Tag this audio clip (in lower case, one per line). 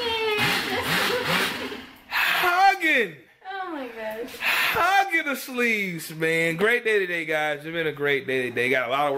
speech